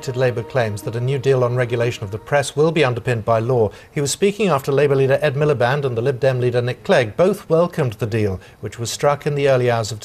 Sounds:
Speech, Music

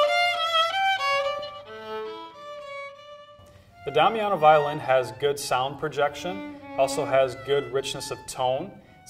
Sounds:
Speech, Musical instrument, Music, fiddle

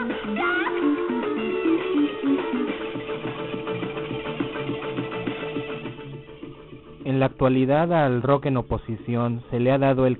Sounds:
Speech, Radio, Music

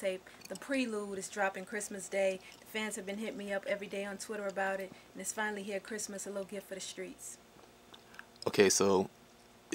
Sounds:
Speech

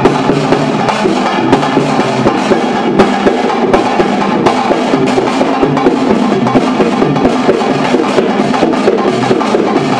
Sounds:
Music

